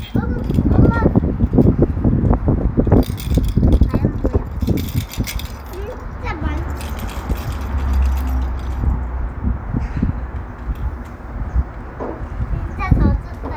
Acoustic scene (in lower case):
residential area